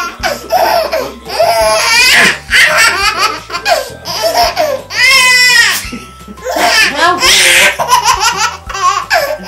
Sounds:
baby laughter

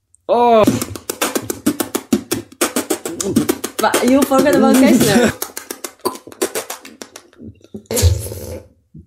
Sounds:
beat boxing

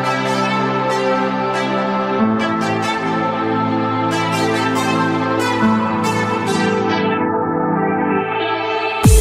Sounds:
ambient music

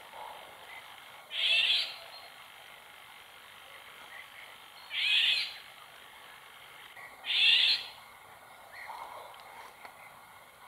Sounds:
wood thrush calling

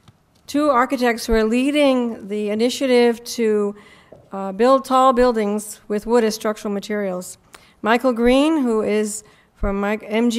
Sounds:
speech

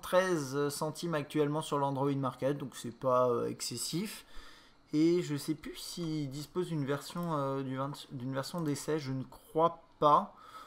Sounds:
speech

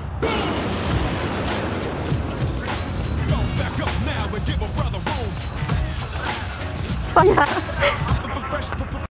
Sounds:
music

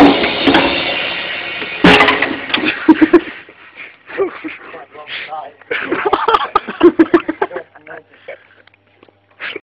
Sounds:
speech

